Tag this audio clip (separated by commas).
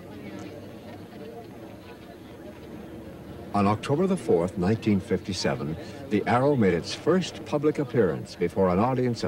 Speech